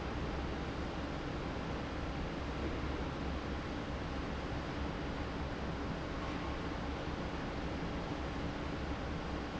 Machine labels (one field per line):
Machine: fan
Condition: normal